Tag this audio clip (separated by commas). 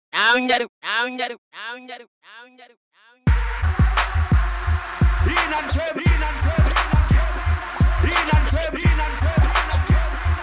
Music, Rapping